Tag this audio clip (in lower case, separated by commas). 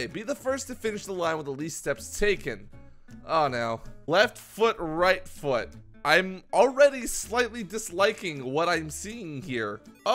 speech, music